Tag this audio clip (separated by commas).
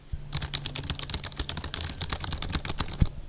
home sounds, Computer keyboard, Typing